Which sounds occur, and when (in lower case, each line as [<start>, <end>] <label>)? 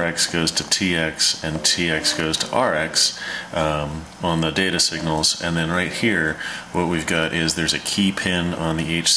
[0.00, 3.12] man speaking
[0.00, 9.15] mechanisms
[1.52, 1.74] generic impact sounds
[3.14, 3.51] breathing
[3.53, 4.03] man speaking
[4.17, 6.33] man speaking
[6.33, 6.69] breathing
[6.69, 9.15] man speaking